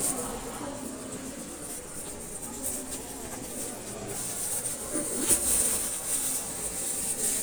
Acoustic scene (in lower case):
crowded indoor space